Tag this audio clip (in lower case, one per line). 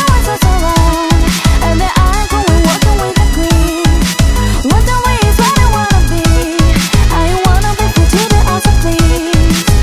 music